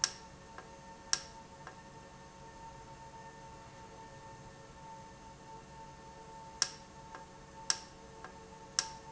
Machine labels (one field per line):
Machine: valve